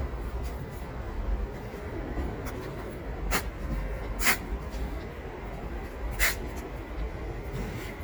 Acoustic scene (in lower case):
residential area